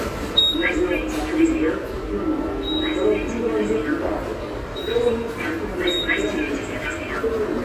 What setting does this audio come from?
subway station